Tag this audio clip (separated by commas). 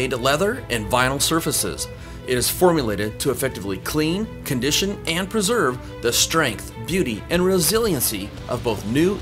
Speech, Music